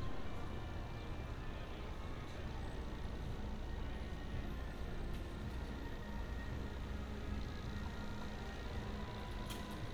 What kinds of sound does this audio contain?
music from a fixed source